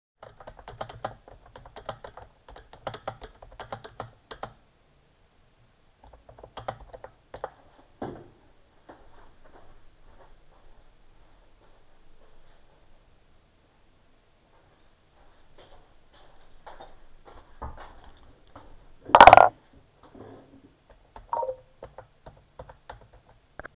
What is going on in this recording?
I typed on the keyboard, stood up and walked away, than came back with the keys and put them on the table. I sat down, continued typing and got notification.